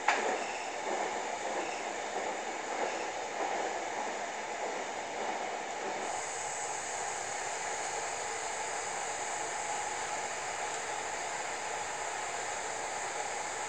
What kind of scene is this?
subway train